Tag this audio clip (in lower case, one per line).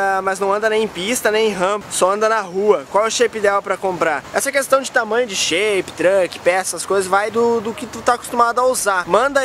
vehicle
speech